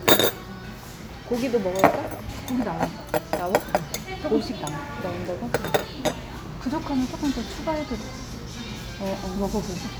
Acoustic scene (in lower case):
restaurant